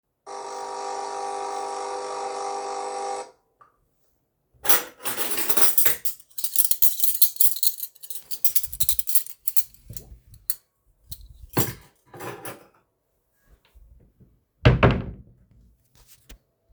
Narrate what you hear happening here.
I started the coffee machine, when it finished I put some cuttlery in the drawer and closed it.